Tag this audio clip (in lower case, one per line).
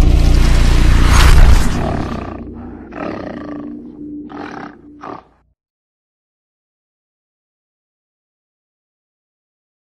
music